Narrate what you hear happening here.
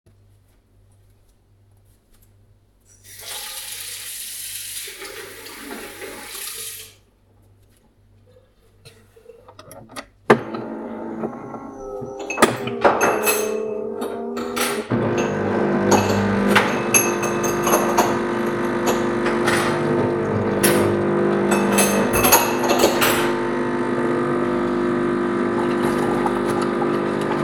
I let the water run, then I started the coffee machine. While it was running I did some dishes.